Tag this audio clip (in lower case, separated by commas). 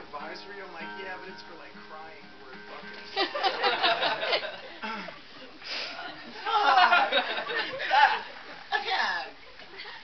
snicker, music, speech, people sniggering